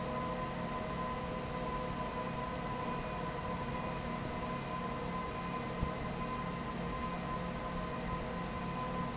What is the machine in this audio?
fan